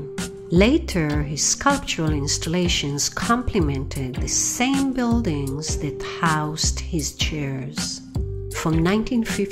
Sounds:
music, speech

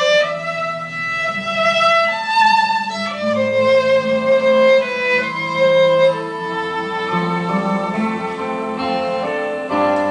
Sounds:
fiddle, musical instrument, music

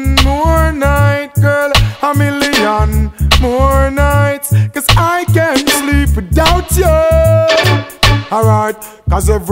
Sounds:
music

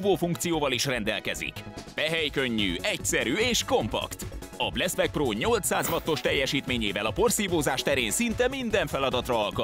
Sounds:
music, speech

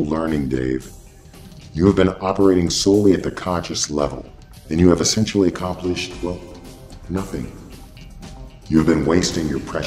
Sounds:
speech, music

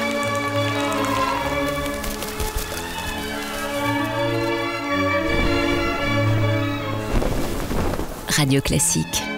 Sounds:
music, speech

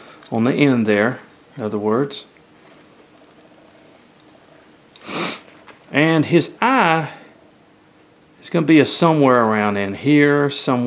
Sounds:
speech

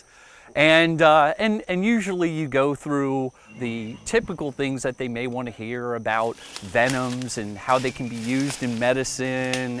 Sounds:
outside, rural or natural, speech

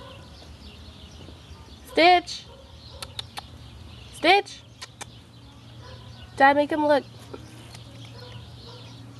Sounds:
speech, animal

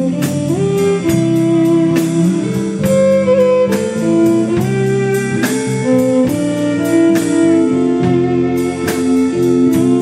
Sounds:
music, saxophone

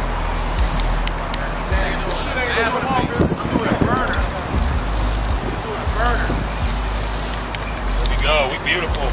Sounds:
spray, speech

